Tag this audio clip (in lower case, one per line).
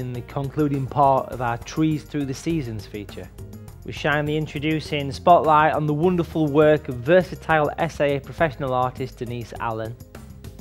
music
speech